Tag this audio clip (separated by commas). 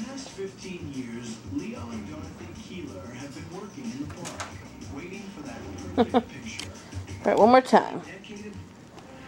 Music, Speech